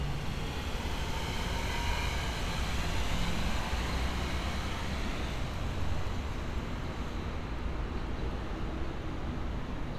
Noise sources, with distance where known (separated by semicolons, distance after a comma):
engine of unclear size